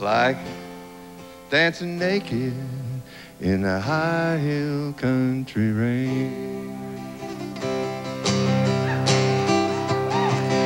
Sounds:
speech, music, country

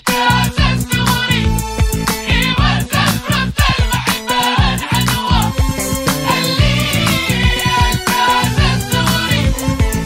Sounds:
music

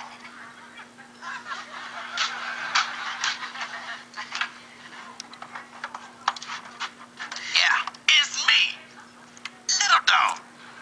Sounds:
speech, inside a large room or hall

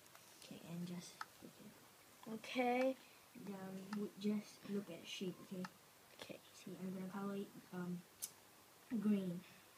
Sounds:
speech, bleat

